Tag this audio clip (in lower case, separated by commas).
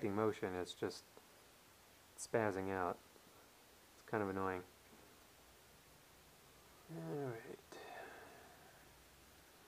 speech